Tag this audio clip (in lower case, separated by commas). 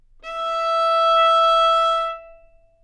music, bowed string instrument, musical instrument